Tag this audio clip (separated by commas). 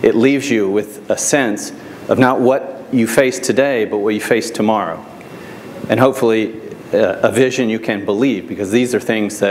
Speech